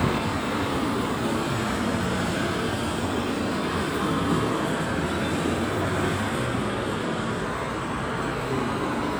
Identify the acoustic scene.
street